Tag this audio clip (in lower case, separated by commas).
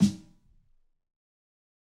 drum, snare drum, percussion, musical instrument, music